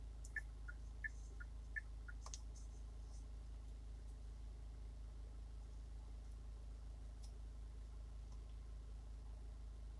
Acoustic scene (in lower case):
car